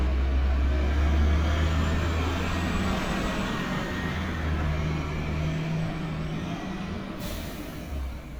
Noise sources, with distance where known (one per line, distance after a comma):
large-sounding engine, near